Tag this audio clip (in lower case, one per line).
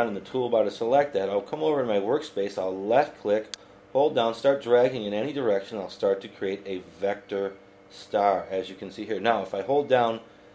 speech